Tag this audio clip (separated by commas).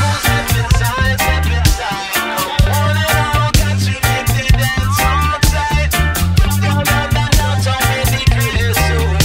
Singing